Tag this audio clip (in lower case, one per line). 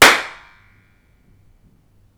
hands
clapping